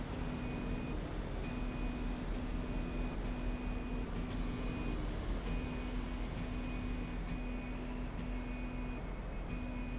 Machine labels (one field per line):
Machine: slide rail